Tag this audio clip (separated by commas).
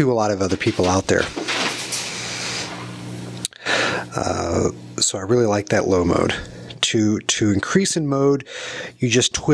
Speech